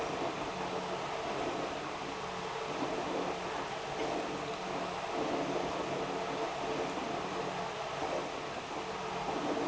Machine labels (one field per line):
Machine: pump